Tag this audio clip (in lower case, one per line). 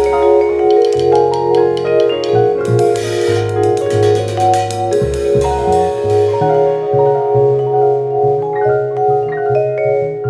musical instrument
percussion
music
marimba
vibraphone